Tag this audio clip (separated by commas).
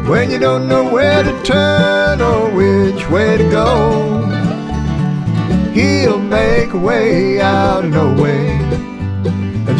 Bluegrass, Music